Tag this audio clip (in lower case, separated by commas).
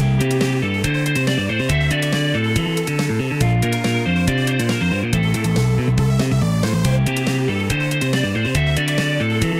music